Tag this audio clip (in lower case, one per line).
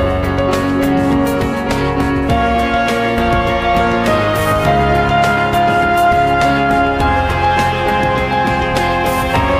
video game music
music